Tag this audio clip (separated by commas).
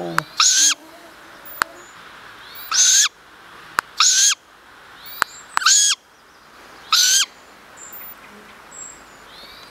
Owl